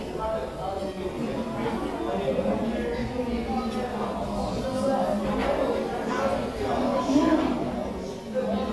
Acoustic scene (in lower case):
crowded indoor space